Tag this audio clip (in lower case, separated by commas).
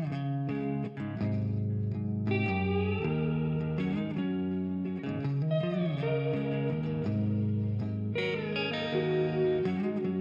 electric guitar, music